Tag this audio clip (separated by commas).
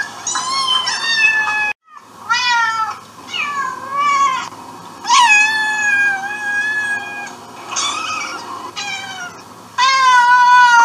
cat growling